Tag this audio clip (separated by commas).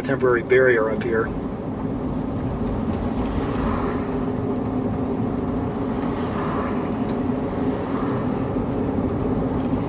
Speech, Wind noise (microphone)